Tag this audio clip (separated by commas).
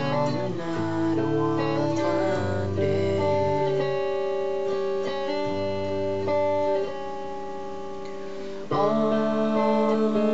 Music